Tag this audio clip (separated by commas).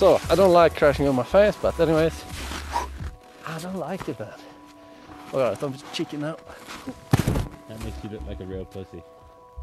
skiing